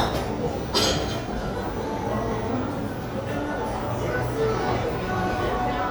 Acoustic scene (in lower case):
cafe